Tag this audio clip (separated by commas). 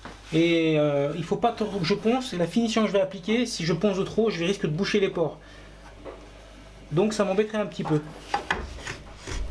Rub, Filing (rasp), Wood